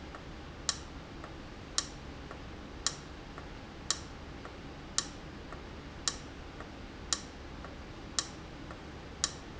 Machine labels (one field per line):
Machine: valve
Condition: abnormal